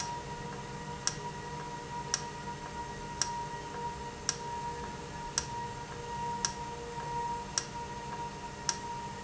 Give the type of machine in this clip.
valve